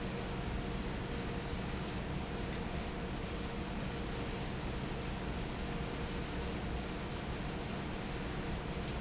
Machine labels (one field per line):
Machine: fan